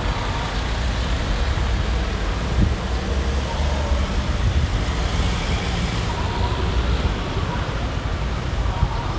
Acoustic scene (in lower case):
street